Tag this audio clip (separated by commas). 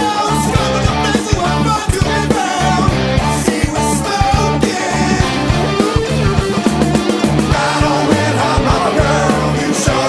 Music